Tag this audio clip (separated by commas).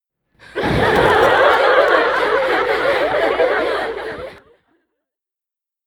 Laughter, Human voice, Chuckle